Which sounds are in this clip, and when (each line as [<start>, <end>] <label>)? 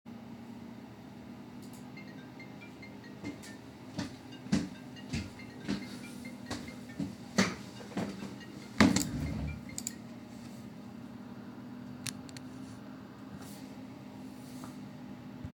[1.94, 10.02] phone ringing
[3.22, 7.98] footsteps